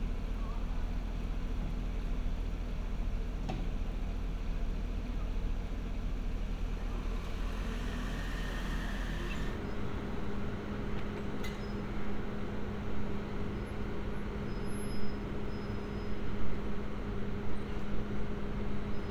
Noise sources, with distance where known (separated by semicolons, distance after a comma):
engine of unclear size